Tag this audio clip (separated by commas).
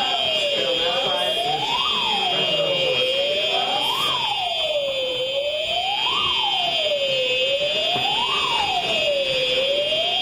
Emergency vehicle, Siren